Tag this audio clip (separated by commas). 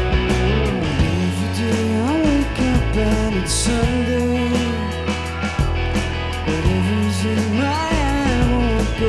Music